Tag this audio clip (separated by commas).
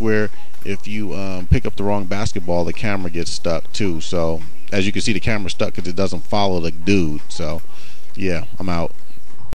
Speech